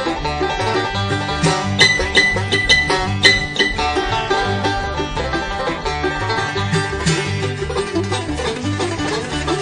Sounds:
Music, Musical instrument, Plucked string instrument, Guitar, Banjo, Bluegrass, playing banjo, Country

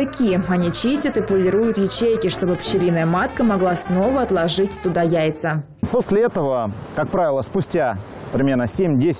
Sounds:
Speech, Music

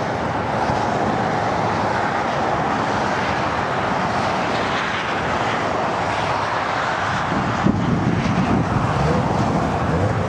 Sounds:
airplane flyby

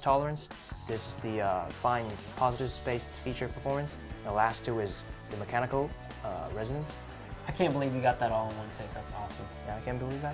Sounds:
Music, Speech

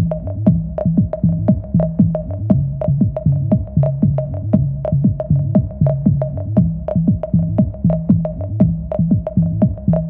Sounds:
Music, Drum machine

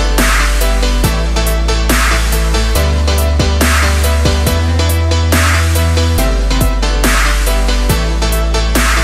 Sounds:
Music, Dubstep

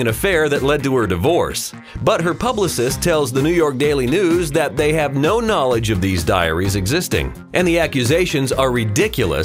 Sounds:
Speech, Music

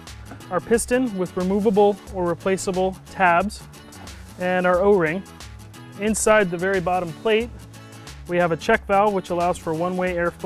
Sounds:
Speech, Music

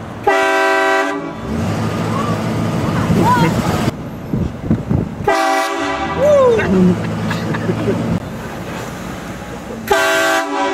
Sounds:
Wind, Train horn, train horning, Wind noise (microphone)

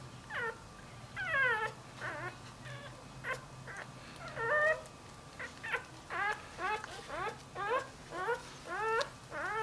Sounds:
Animal, Domestic animals, Dog

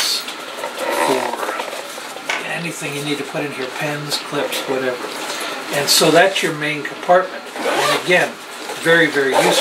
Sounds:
inside a small room, Speech

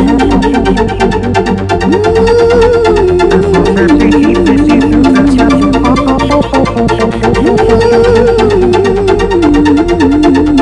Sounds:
Electronica, Music

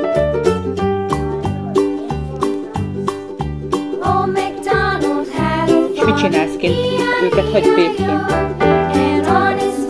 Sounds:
Speech, Jingle (music), Music

